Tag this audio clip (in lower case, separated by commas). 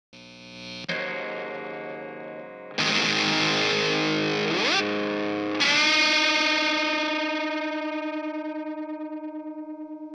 music, distortion